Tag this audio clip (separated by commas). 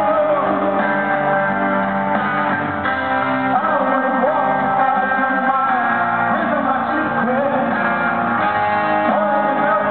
Pop music, Music